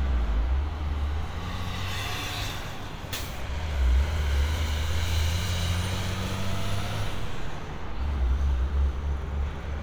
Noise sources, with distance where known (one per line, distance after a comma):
large-sounding engine, near